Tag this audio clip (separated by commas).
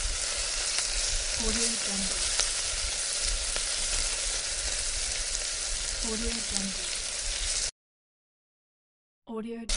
Water, Sizzle, Frying (food), Speech